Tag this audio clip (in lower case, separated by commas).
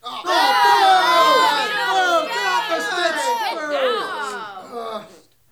crowd, human group actions